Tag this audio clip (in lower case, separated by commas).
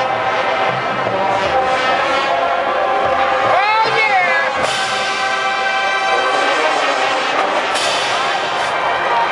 music, speech